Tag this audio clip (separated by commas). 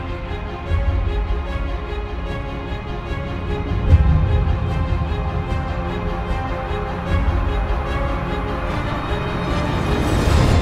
Music